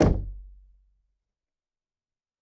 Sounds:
Domestic sounds, Door, Knock

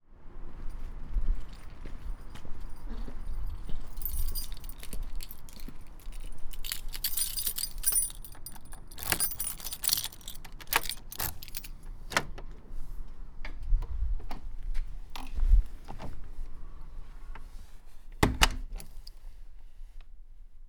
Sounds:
Keys jangling, Domestic sounds

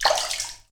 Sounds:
Water, Sink (filling or washing), Splash, Liquid, Domestic sounds

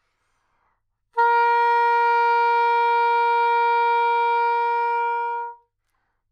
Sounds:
Wind instrument, Music, Musical instrument

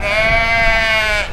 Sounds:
Animal, livestock

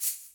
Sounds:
Musical instrument, Percussion, Rattle (instrument), Music

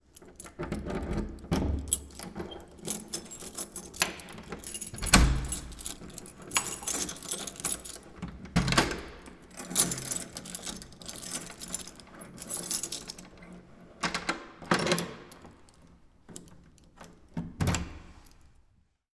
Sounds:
Domestic sounds, Keys jangling

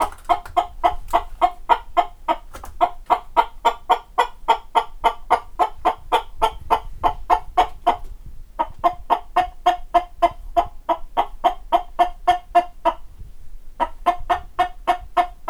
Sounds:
rooster, livestock, Fowl, Animal

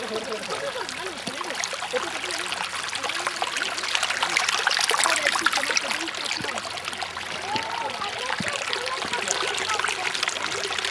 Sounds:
Stream, Water

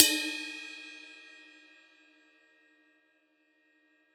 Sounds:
Crash cymbal, Cymbal, Music, Percussion, Musical instrument

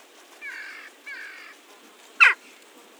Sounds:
Animal, Wild animals, Bird

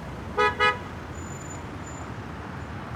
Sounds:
Motor vehicle (road), Vehicle

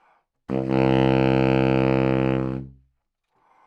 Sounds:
Musical instrument, Music, woodwind instrument

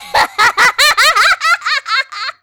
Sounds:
Human voice, Laughter

